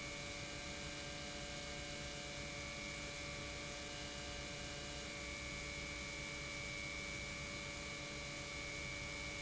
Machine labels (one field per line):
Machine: pump